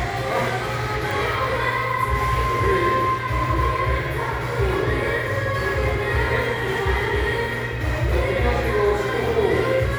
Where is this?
in a crowded indoor space